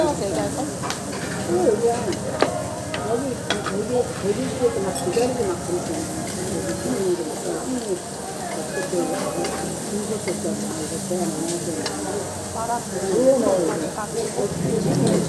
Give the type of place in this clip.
restaurant